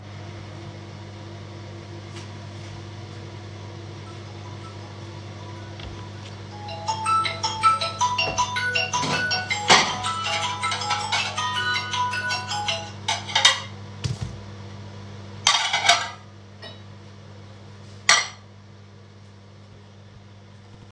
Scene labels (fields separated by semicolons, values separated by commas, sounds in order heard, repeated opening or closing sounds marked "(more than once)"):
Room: kitchen; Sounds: microwave, footsteps, phone ringing, wardrobe or drawer, cutlery and dishes